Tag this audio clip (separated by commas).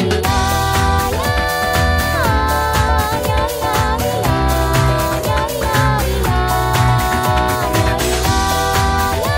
Music